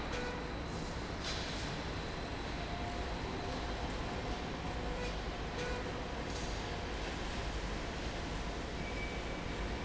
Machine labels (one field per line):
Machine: slide rail